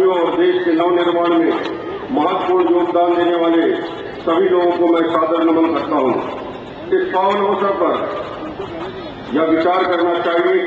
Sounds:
narration
speech
man speaking

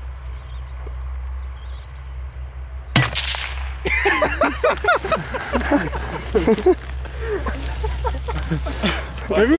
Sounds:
speech

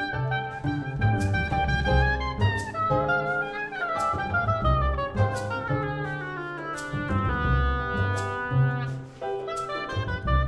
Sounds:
playing oboe

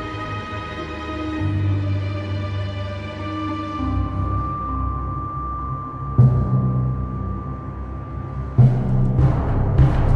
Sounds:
music
tender music

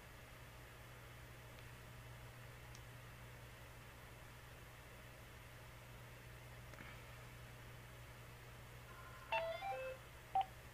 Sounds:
silence

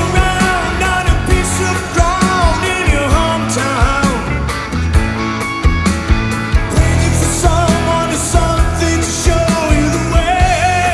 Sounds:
singing
independent music

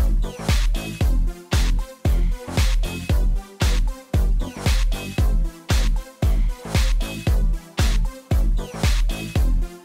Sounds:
music

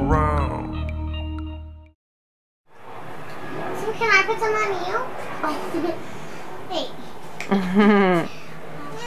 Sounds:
speech

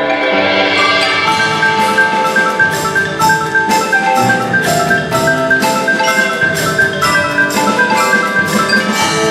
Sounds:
xylophone
glockenspiel
mallet percussion
playing marimba
percussion

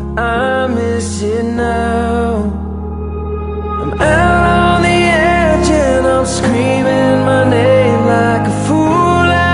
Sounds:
music

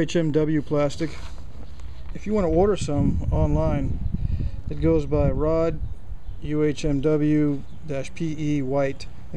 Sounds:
speech

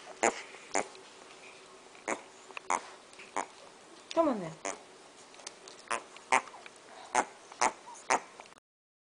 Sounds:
oink
speech

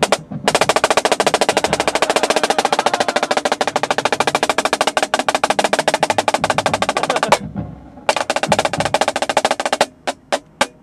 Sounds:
playing snare drum

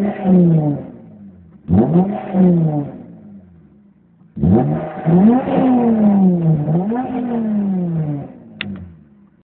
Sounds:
revving
engine
vehicle

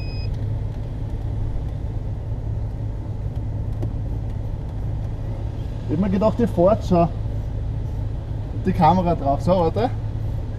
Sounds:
speech

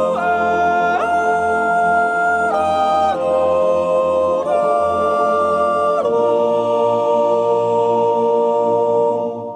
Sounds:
yodelling

